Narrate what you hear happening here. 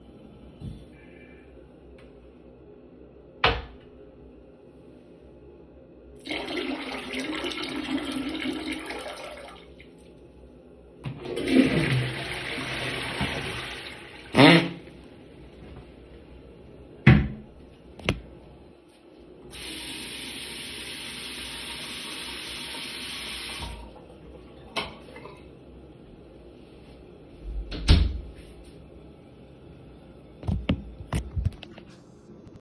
I raised the toilette seat up relieved myself twice, lowered the toilette seat and flushed it. I then turned on the water to wash my hands. Then i turned off the light switch and closed the door.